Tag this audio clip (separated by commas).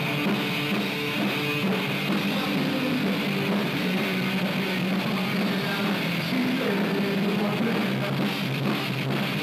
Music